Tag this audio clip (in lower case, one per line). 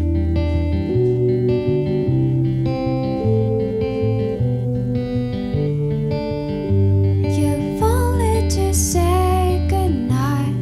music